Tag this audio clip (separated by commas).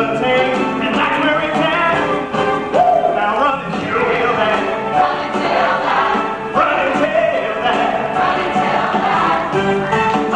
Music